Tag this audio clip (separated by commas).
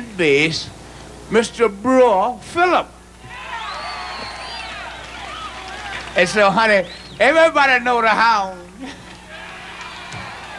Speech